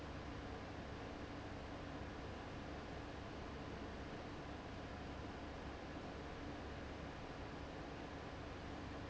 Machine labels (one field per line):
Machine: fan